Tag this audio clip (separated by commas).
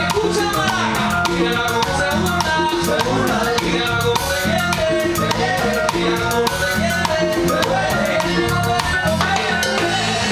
Salsa music, Music